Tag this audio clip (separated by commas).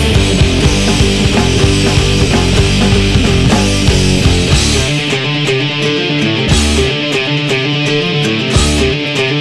Music, Heavy metal, Rock music